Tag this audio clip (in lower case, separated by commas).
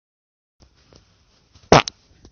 fart